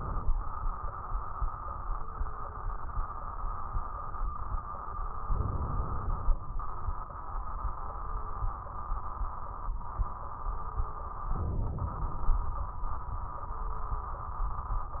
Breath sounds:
5.29-6.39 s: inhalation
11.31-12.41 s: inhalation

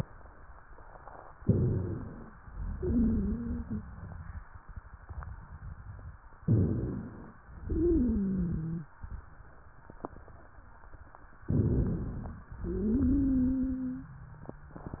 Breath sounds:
1.37-2.31 s: inhalation
1.39-2.01 s: stridor
2.51-4.44 s: exhalation
2.75-3.76 s: wheeze
6.43-7.05 s: stridor
6.45-7.40 s: inhalation
7.64-8.87 s: exhalation
7.74-8.87 s: wheeze
11.44-12.38 s: inhalation
11.48-12.10 s: stridor
12.55-14.11 s: exhalation
12.65-14.11 s: wheeze

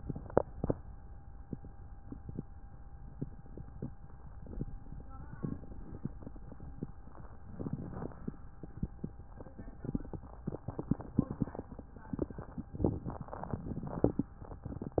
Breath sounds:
5.30-6.14 s: inhalation
7.56-8.40 s: inhalation
12.79-13.63 s: inhalation
13.61-14.30 s: exhalation

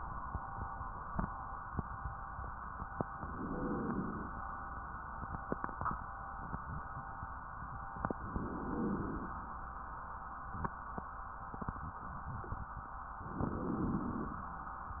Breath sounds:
3.18-4.32 s: inhalation
8.21-9.35 s: inhalation
13.24-14.38 s: inhalation

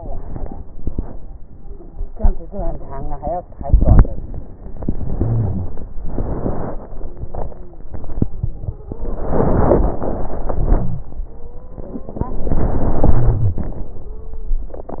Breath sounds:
4.65-5.94 s: inhalation
5.92-7.92 s: exhalation
7.03-7.92 s: wheeze
8.28-9.18 s: stridor
8.90-9.97 s: inhalation
9.94-11.25 s: crackles
9.96-11.28 s: exhalation
11.28-12.42 s: stridor
11.97-14.05 s: inhalation
14.06-14.75 s: stridor

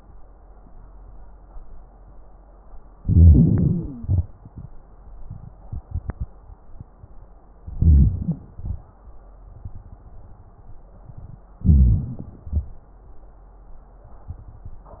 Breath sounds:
2.98-3.98 s: inhalation
2.98-3.98 s: wheeze
4.00-4.32 s: exhalation
7.78-8.43 s: inhalation
8.57-8.99 s: exhalation
11.63-12.25 s: inhalation
11.63-12.25 s: wheeze
12.46-12.92 s: exhalation

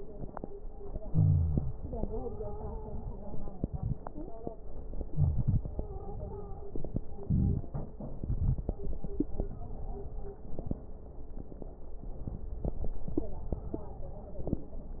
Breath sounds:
1.09-3.53 s: exhalation
1.10-1.72 s: wheeze
1.75-3.59 s: stridor
3.54-4.58 s: inhalation
4.07-4.61 s: stridor
5.04-7.17 s: exhalation
5.10-5.63 s: wheeze
5.73-6.66 s: stridor
7.19-8.20 s: inhalation
7.19-8.20 s: crackles
13.11-14.55 s: stridor

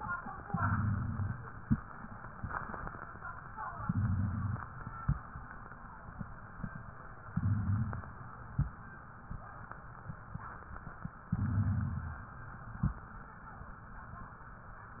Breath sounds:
0.49-1.39 s: inhalation
0.49-1.39 s: rhonchi
3.77-4.67 s: inhalation
3.77-4.67 s: rhonchi
7.30-8.20 s: inhalation
7.30-8.20 s: rhonchi
11.29-12.18 s: inhalation
11.29-12.18 s: rhonchi

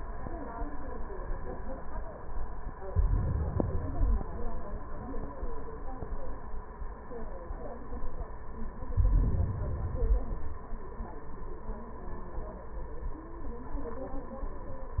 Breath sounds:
2.87-3.89 s: inhalation
3.87-4.89 s: exhalation
8.95-9.80 s: inhalation
9.81-10.65 s: exhalation

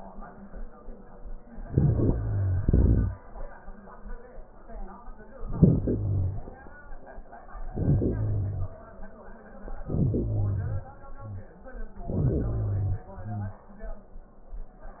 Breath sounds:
1.67-3.17 s: inhalation
5.42-6.48 s: inhalation
7.51-8.96 s: inhalation
9.65-10.99 s: inhalation
11.93-13.03 s: inhalation
13.00-14.10 s: exhalation

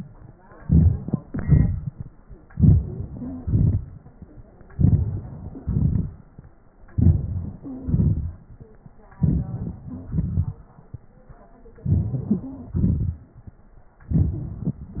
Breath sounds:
0.62-0.97 s: inhalation
1.27-1.76 s: exhalation
2.50-2.83 s: inhalation
3.17-3.44 s: wheeze
3.45-3.86 s: exhalation
4.74-5.25 s: inhalation
5.63-6.15 s: exhalation
6.93-7.55 s: inhalation
7.64-8.00 s: wheeze
7.84-8.38 s: exhalation
9.22-9.57 s: inhalation
10.11-10.59 s: exhalation
11.86-12.47 s: inhalation
12.76-13.22 s: exhalation

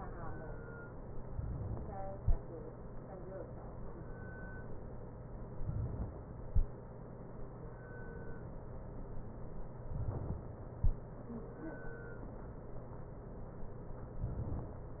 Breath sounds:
1.14-2.18 s: inhalation
5.47-6.52 s: inhalation
9.97-10.82 s: inhalation

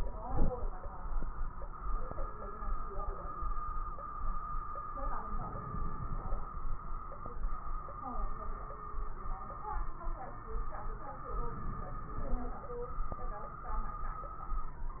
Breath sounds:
0.19-0.74 s: inhalation
5.31-6.47 s: crackles
5.33-6.45 s: inhalation
11.37-12.49 s: inhalation

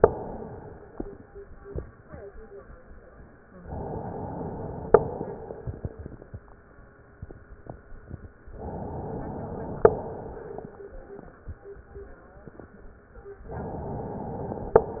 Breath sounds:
0.00-0.98 s: exhalation
3.64-4.95 s: inhalation
4.95-6.39 s: exhalation
8.58-9.85 s: inhalation
9.85-10.76 s: exhalation
13.51-14.80 s: inhalation

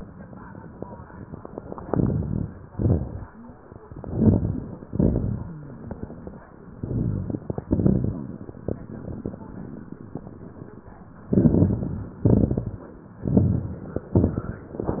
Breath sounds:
1.81-2.70 s: inhalation
1.81-2.70 s: crackles
2.73-3.62 s: exhalation
2.73-3.62 s: crackles
3.92-4.85 s: inhalation
3.92-4.85 s: crackles
4.86-5.93 s: exhalation
4.86-5.93 s: crackles
6.71-7.66 s: inhalation
6.71-7.66 s: crackles
7.69-8.63 s: exhalation
7.69-8.63 s: crackles
11.24-12.19 s: crackles
11.26-12.21 s: inhalation
12.20-13.15 s: exhalation
12.20-13.15 s: crackles
13.24-14.11 s: inhalation
13.24-14.11 s: crackles
14.14-14.78 s: exhalation
14.14-14.78 s: crackles
14.83-15.00 s: inhalation
14.83-15.00 s: crackles

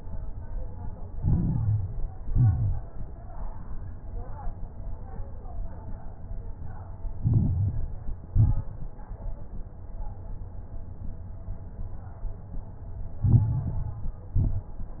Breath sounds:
1.08-2.14 s: inhalation
1.08-2.14 s: crackles
2.18-2.90 s: exhalation
2.18-2.90 s: crackles
7.14-8.21 s: inhalation
7.14-8.21 s: crackles
8.28-9.01 s: exhalation
8.28-9.01 s: crackles
13.21-14.27 s: inhalation
13.21-14.27 s: crackles
14.35-15.00 s: exhalation
14.35-15.00 s: crackles

